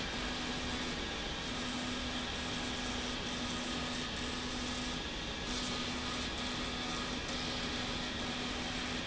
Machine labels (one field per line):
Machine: slide rail